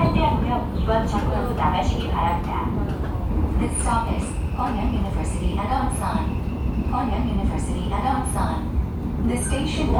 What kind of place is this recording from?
subway train